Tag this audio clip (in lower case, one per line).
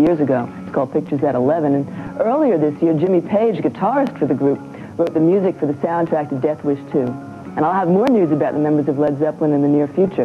speech